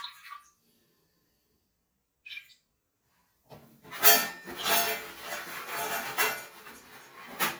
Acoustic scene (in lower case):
restroom